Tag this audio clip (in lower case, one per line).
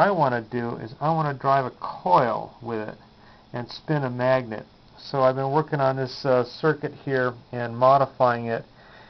speech